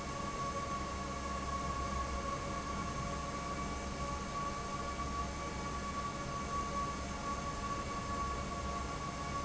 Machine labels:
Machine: fan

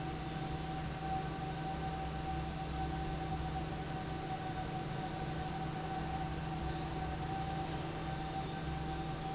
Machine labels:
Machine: fan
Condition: normal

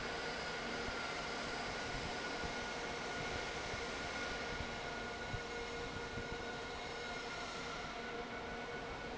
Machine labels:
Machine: fan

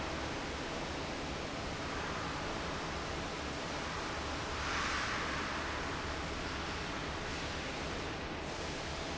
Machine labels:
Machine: fan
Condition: normal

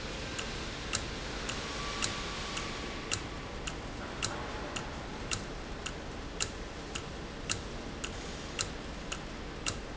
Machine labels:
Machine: valve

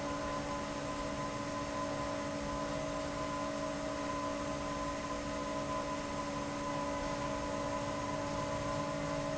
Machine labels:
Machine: fan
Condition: abnormal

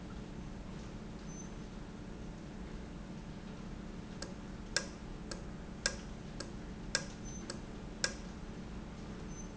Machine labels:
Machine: valve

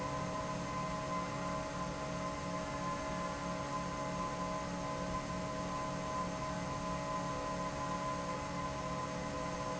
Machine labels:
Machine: fan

